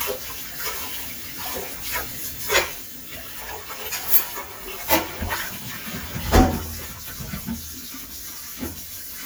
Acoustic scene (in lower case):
kitchen